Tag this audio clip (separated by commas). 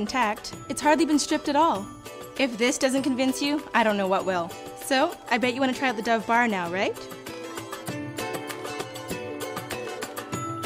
Music, Speech